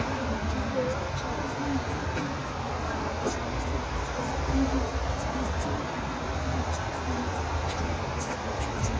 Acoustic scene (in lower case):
street